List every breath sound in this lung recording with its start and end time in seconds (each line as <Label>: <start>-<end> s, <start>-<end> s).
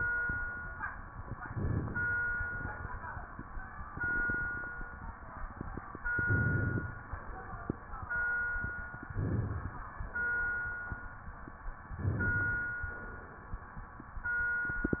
Inhalation: 1.32-2.26 s, 6.09-7.03 s, 9.09-10.03 s, 11.96-12.89 s